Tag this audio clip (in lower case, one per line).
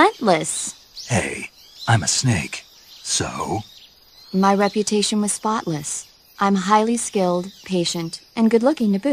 speech